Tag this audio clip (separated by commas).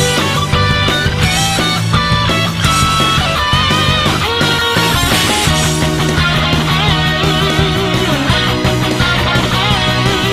Guitar, Electric guitar, Plucked string instrument, Bass guitar, Musical instrument, Music